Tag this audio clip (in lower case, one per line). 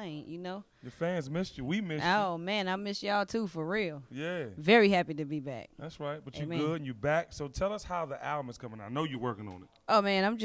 speech